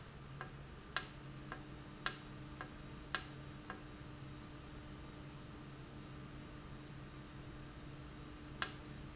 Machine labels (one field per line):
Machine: valve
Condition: normal